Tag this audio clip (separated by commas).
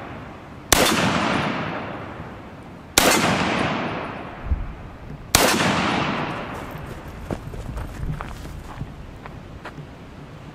machine gun shooting